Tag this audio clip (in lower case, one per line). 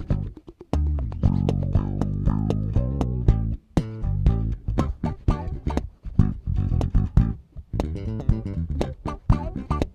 bass guitar
music
plucked string instrument
musical instrument
strum
guitar